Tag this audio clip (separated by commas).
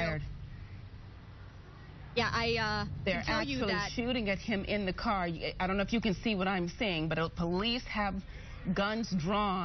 Speech